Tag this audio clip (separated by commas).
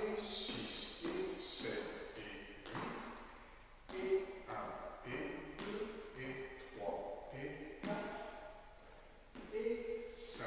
Speech